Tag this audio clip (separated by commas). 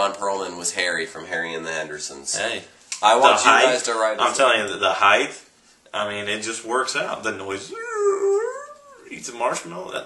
inside a small room, Speech